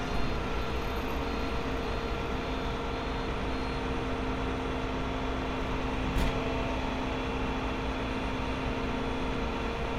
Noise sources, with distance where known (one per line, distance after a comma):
large-sounding engine, near